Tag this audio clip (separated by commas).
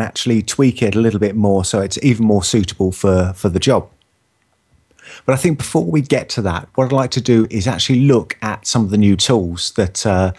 Speech